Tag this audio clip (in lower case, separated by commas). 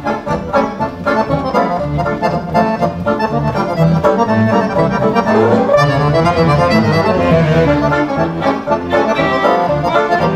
musical instrument, speech, violin, music